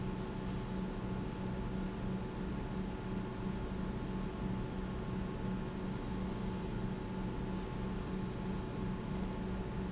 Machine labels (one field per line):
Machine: pump